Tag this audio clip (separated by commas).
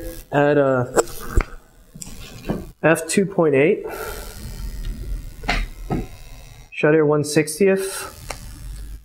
Speech